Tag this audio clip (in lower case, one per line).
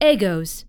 speech
human voice
woman speaking